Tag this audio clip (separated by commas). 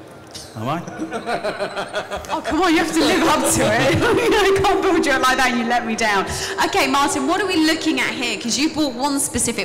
Speech